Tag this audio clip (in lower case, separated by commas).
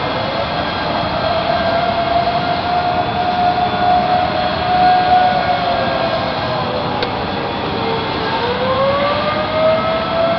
siren